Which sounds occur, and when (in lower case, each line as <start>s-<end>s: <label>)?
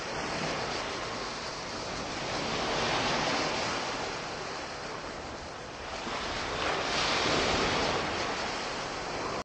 0.0s-9.4s: waves
0.0s-9.4s: wind